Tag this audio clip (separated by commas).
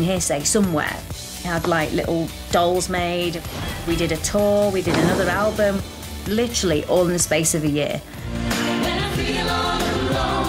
Music, Speech